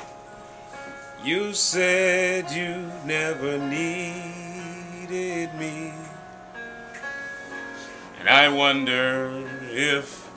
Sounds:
music, inside a small room

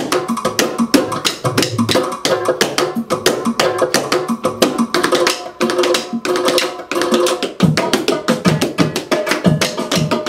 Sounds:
music, tap

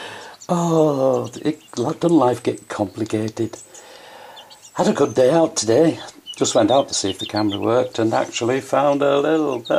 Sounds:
speech

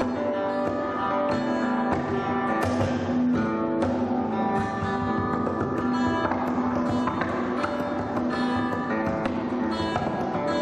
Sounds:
guitar, plucked string instrument, musical instrument, music, acoustic guitar, strum

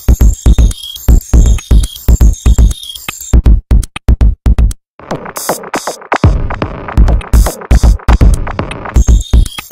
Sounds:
music

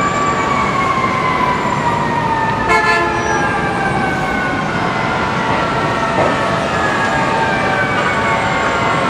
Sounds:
fire engine, siren, emergency vehicle

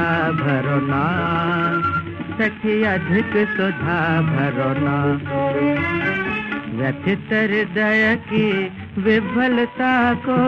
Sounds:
folk music, music

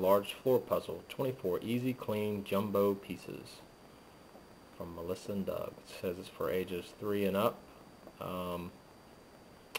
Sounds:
speech

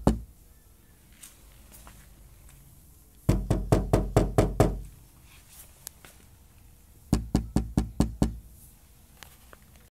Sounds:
sound effect

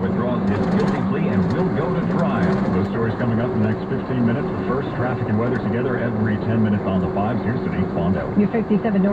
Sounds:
vehicle, speech

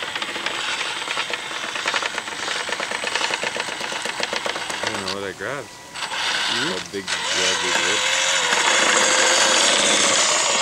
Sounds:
speech, vehicle, outside, rural or natural, truck

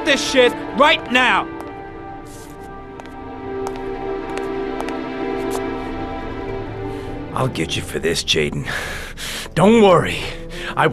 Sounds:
music, speech

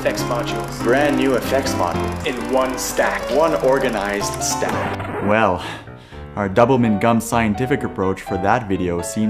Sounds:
speech, music

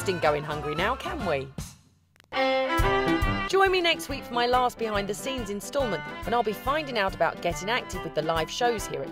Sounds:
speech, music

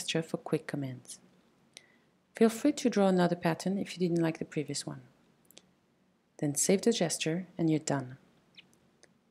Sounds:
speech, mouse

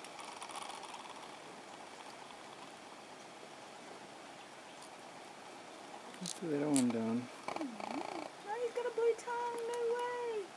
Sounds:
outside, rural or natural, speech

